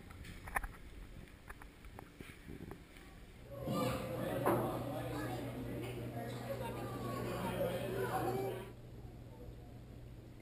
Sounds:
speech

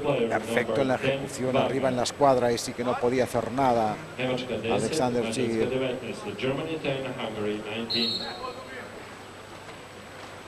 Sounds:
speech

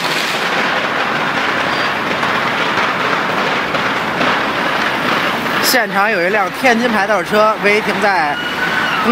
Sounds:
police car (siren), emergency vehicle, siren

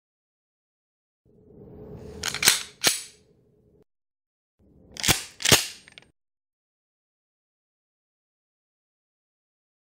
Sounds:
cap gun shooting, cap gun

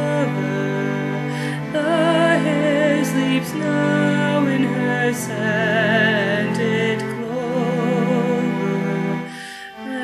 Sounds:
lullaby, music

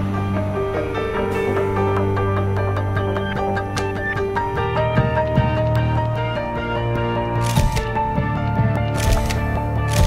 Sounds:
tender music, music

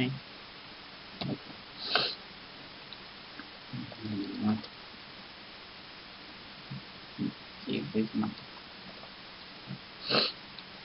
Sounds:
speech, inside a small room

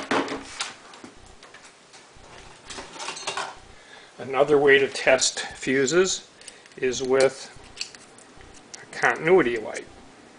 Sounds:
speech, inside a small room

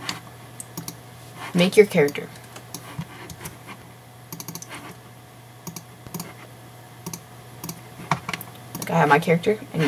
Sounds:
speech

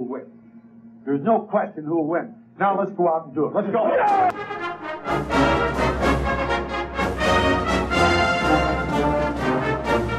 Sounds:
music, speech

